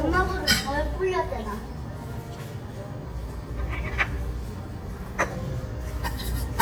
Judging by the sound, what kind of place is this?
restaurant